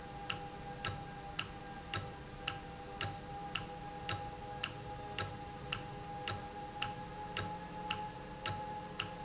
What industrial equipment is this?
valve